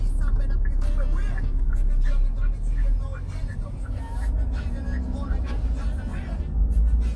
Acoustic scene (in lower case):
car